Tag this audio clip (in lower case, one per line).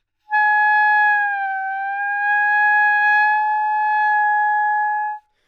musical instrument
music
wind instrument